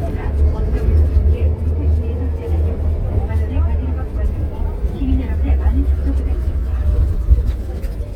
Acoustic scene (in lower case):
bus